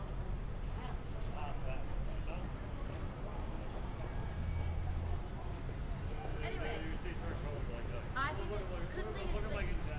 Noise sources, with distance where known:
person or small group talking, near

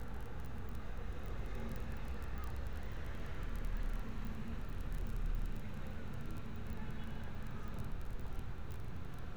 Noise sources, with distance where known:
medium-sounding engine

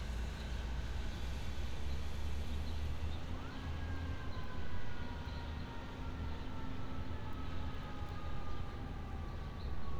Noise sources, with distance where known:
siren, far

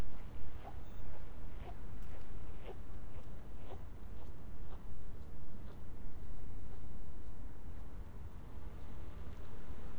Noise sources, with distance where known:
background noise

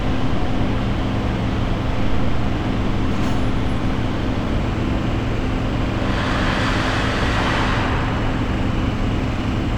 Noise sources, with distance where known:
large-sounding engine

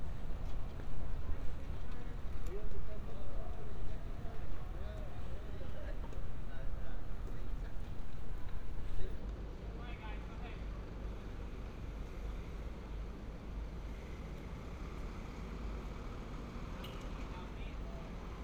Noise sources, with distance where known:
person or small group talking

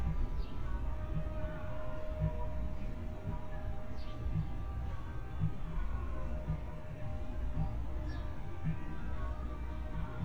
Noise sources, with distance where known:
music from a fixed source

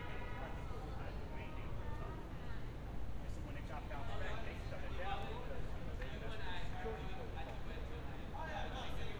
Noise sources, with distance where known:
car horn, far; person or small group talking, near

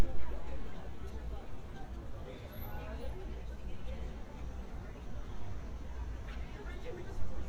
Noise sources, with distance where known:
person or small group talking, far

